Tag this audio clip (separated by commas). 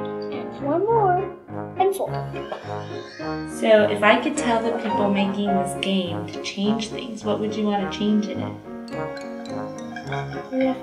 Music, Speech